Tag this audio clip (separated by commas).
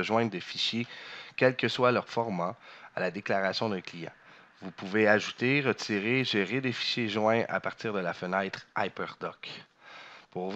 Speech